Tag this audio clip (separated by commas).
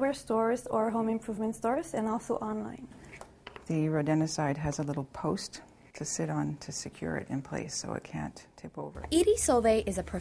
Speech